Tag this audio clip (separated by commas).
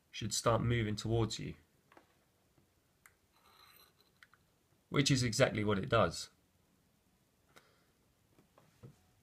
Hands, Speech